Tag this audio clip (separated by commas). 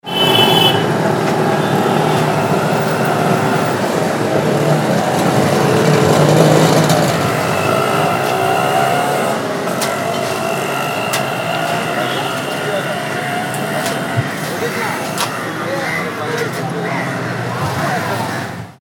Vehicle, Motor vehicle (road), roadway noise